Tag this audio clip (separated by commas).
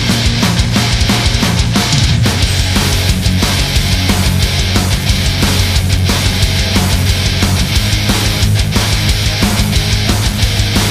Music